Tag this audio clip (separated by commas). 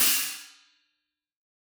Music, Percussion, Hi-hat, Cymbal, Musical instrument